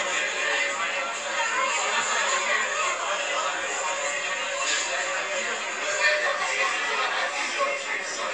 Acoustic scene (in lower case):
crowded indoor space